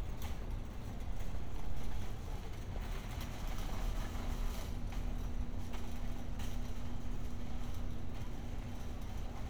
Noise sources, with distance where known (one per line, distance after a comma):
background noise